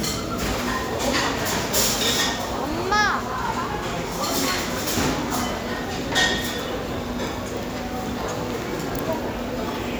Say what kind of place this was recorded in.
crowded indoor space